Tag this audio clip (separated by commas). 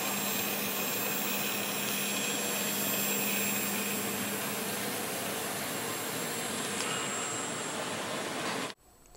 Speech